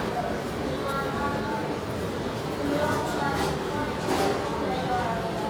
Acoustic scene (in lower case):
subway station